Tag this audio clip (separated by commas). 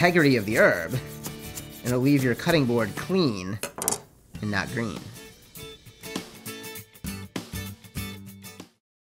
Chopping (food)